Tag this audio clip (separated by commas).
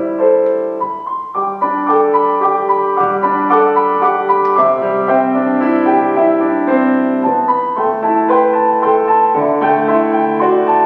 Music